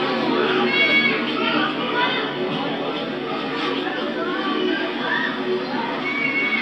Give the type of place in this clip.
park